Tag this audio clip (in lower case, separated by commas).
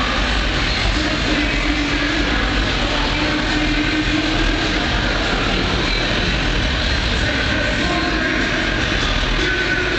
music, car, vehicle